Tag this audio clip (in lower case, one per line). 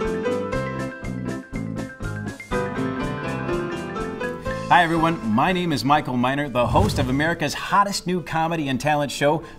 music
speech